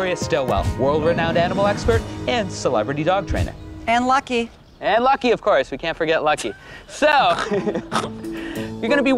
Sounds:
Music, Speech

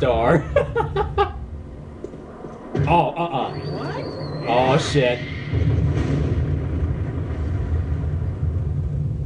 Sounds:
Rumble, Speech, inside a small room

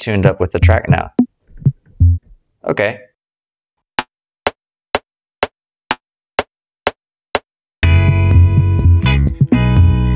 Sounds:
Music, Speech, Drum machine, Drum

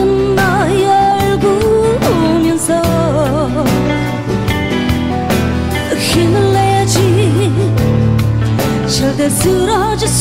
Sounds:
Music

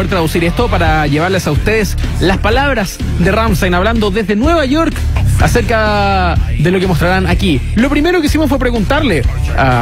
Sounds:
Speech, Music

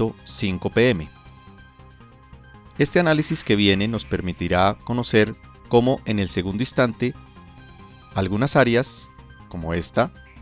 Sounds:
Music, Speech

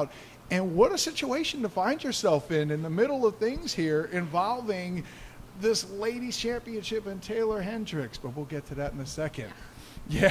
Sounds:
Speech

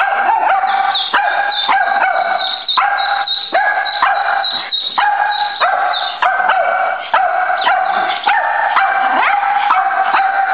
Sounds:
Animal, Whimper (dog), dog bow-wow, Bow-wow, Dog, Domestic animals

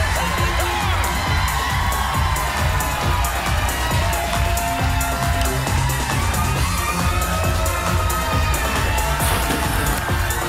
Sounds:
Music

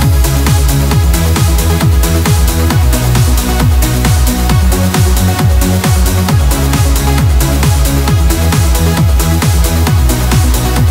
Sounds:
Electronic music, Dance music, Music

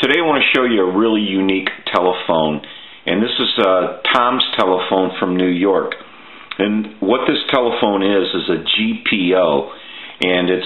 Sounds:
Speech

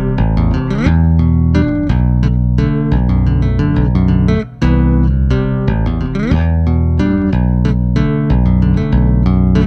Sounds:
Musical instrument, Tapping (guitar technique), Plucked string instrument, Bass guitar, Music, Guitar

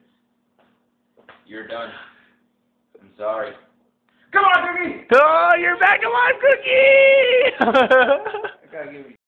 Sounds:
Speech

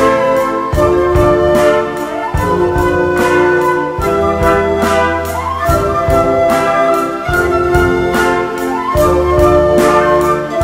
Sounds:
Music, Flute

